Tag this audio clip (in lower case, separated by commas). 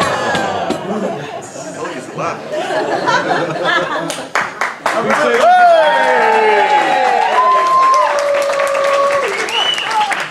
man speaking, conversation, speech